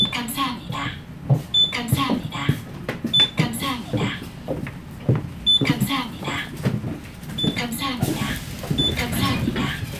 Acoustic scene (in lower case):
bus